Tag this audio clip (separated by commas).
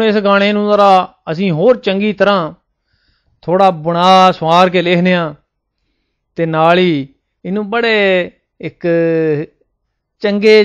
Speech